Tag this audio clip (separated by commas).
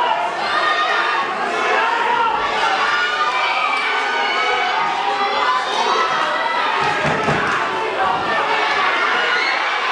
inside a large room or hall, Speech